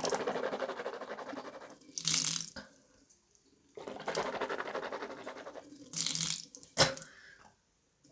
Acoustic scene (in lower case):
restroom